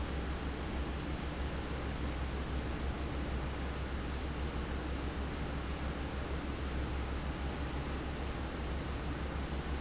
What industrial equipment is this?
fan